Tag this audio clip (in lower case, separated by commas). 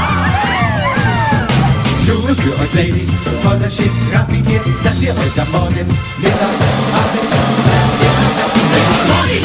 music, musical instrument